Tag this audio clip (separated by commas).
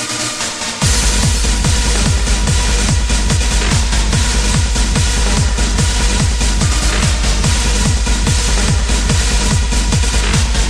Techno, Electronic music, Music